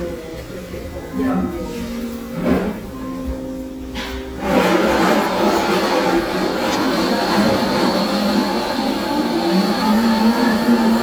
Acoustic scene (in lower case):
cafe